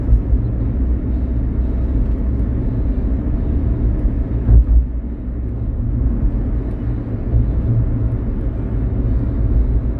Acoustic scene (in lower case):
car